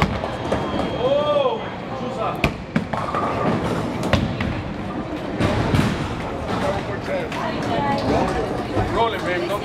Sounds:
bowling impact

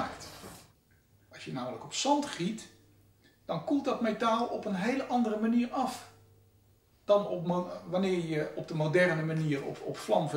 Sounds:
Speech

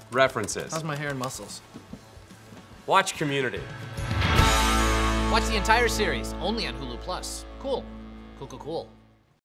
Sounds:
Speech, Music

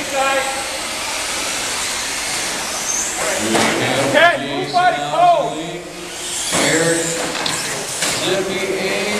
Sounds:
inside a large room or hall, Speech

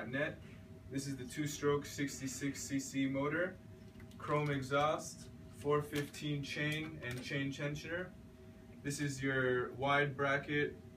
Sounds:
Speech

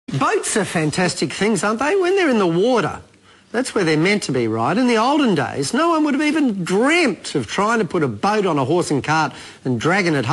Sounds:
Speech

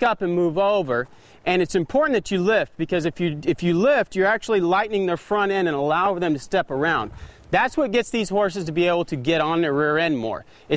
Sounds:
Speech

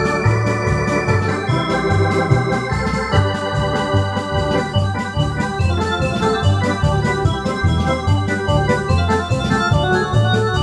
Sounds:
playing hammond organ

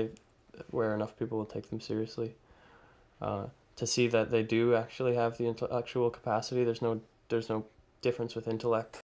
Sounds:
Speech

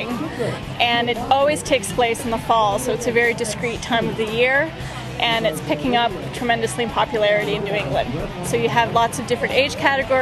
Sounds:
Music, Speech

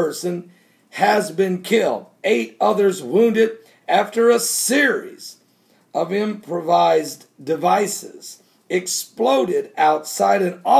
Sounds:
Speech

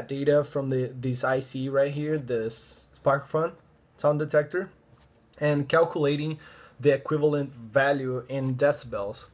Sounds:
Speech

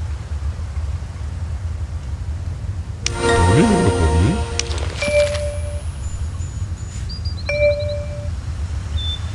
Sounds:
Speech, Music

